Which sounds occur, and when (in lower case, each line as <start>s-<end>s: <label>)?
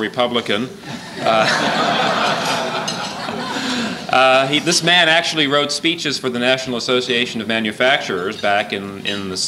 0.0s-0.7s: male speech
0.9s-4.1s: laughter
4.1s-9.4s: male speech